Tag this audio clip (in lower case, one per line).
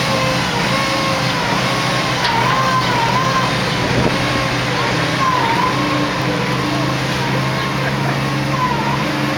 vehicle